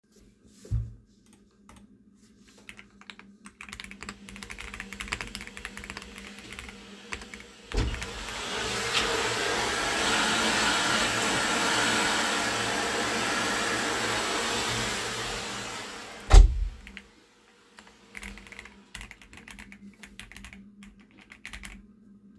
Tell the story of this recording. I am working on my pc and someone walked in while vacuuming.